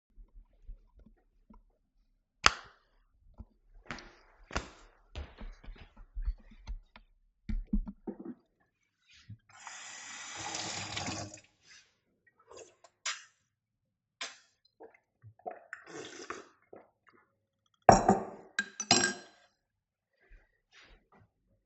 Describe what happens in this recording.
I switched the light on went to the kitchen, filled the cup with water drank it and put the cup back